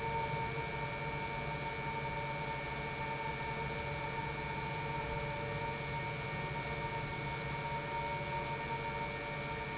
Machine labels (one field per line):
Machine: pump